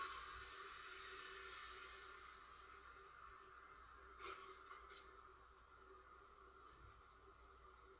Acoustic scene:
residential area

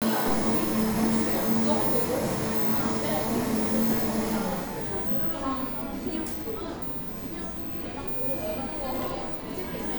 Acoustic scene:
cafe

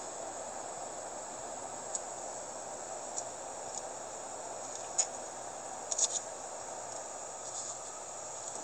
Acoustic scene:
car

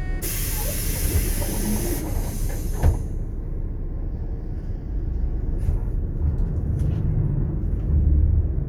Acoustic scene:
bus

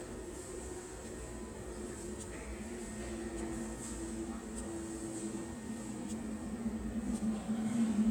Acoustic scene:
subway station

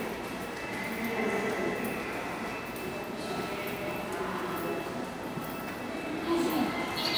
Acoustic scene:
subway station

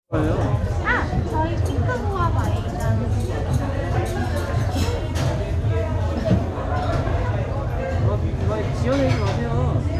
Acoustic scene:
restaurant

